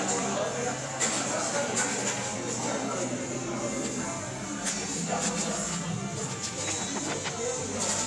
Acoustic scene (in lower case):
cafe